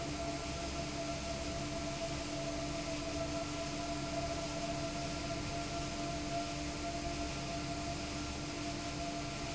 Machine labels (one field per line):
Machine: fan